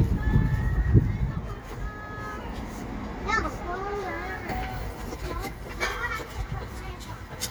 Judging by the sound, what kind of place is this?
residential area